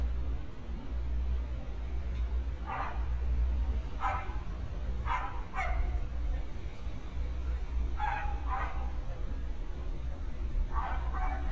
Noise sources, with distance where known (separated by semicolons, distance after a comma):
dog barking or whining, near